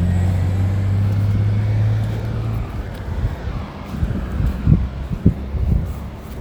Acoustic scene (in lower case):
street